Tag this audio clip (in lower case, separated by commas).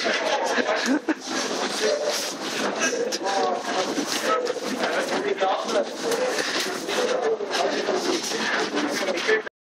speech